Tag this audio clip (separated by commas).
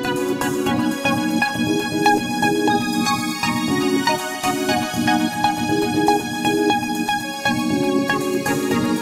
Music